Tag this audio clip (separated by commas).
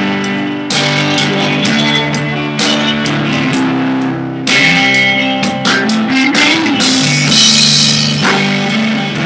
Music, Musical instrument, Drum, Drum kit